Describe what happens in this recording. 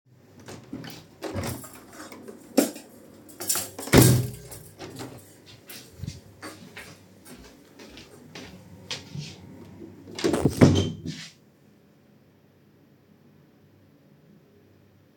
I went to the window, opened it and then closed it. Afterwards I went to the bathroom and opened the door.